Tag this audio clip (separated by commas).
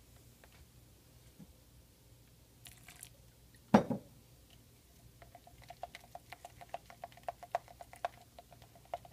Silence